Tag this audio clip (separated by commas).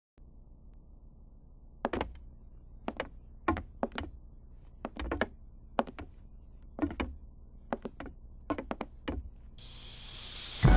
inside a large room or hall